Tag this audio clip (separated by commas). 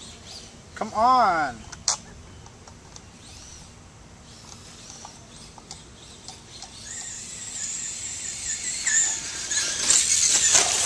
Speech